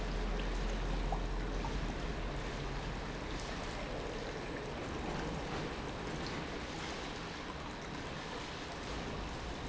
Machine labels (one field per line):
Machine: pump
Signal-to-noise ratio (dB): -6 dB